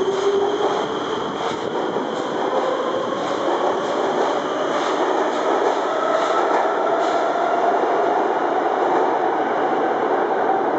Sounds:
subway

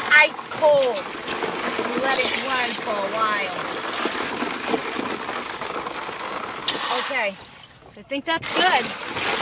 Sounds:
Speech

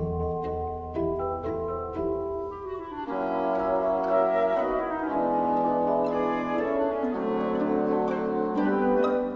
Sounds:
Music

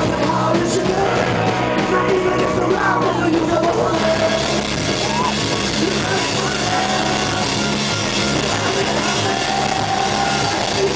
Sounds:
Music

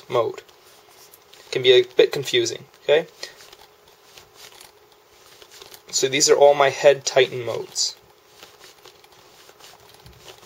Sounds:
Speech, inside a small room

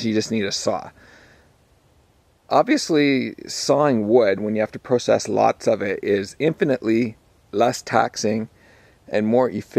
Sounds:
Speech

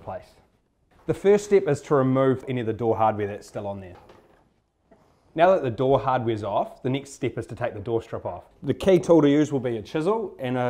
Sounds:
Speech

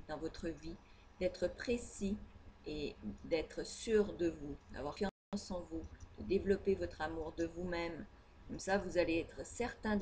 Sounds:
Speech

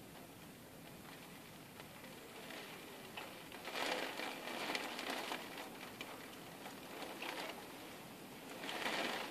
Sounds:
Raindrop

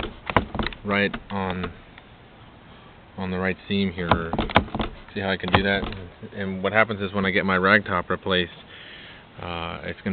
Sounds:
Speech

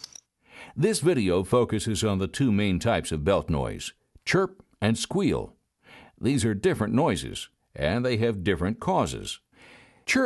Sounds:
Speech

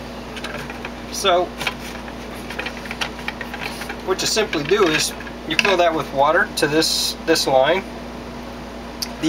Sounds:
Speech, inside a small room

